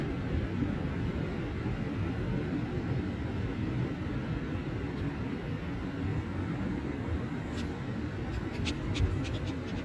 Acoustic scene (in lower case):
residential area